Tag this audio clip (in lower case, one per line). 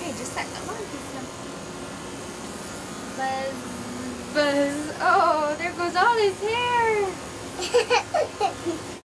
speech